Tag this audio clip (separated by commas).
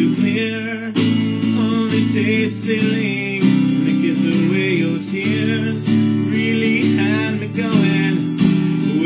Music